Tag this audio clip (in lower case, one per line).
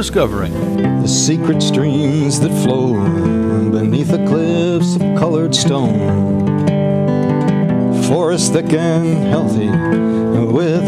speech
music